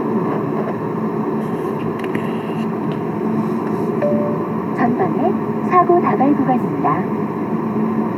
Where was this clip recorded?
in a car